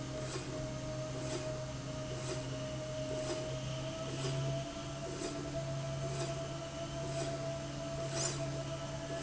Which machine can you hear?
slide rail